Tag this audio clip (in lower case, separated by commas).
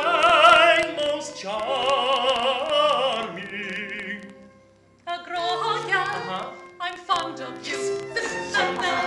music, female singing, male singing